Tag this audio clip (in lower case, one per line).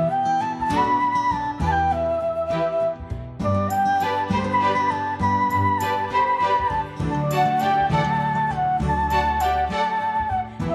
flute
musical instrument
woodwind instrument
playing flute
music
inside a small room